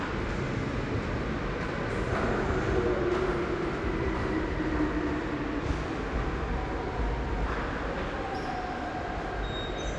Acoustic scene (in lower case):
subway station